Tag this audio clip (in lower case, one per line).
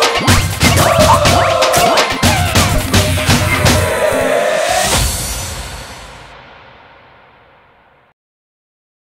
music